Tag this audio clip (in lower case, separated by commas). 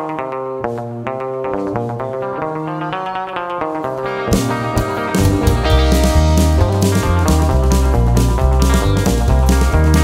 music